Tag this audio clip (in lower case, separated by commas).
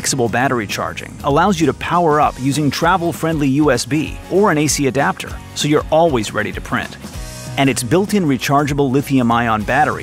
music, speech